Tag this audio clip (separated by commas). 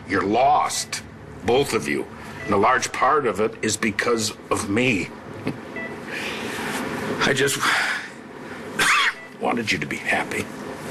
Speech